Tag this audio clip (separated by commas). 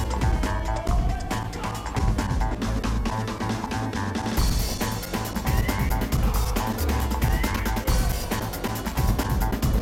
Music